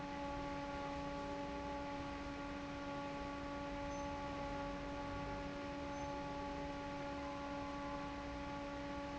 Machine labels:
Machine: fan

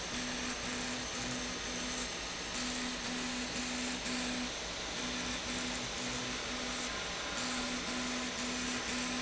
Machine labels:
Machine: slide rail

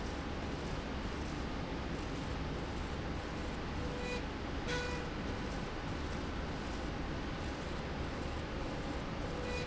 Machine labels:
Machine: slide rail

